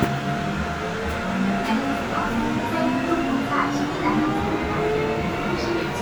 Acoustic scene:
subway train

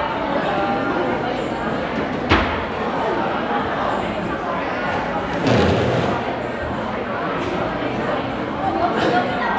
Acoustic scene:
crowded indoor space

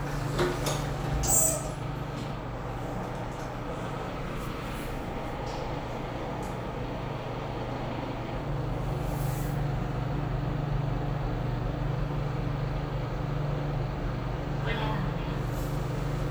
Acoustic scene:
elevator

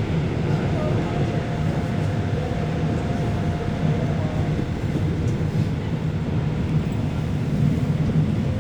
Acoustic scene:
subway train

